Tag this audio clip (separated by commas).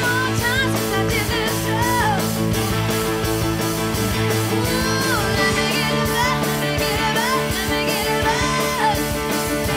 Music